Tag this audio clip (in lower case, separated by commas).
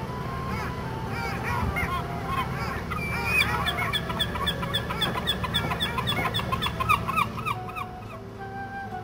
animal, quack, music, duck